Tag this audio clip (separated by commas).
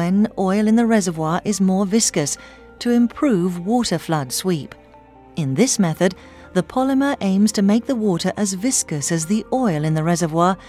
Music, Speech